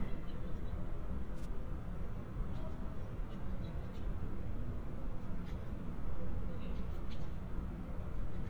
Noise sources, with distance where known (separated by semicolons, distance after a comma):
background noise